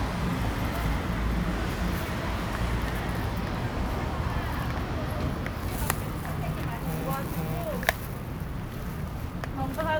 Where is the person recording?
in a residential area